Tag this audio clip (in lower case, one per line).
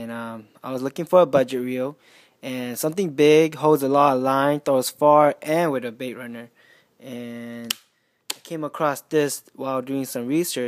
speech